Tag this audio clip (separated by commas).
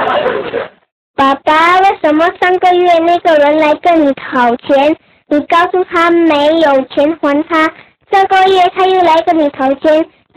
Speech